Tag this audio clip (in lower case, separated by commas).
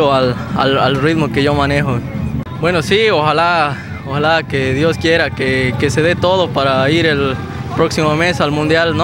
speech, music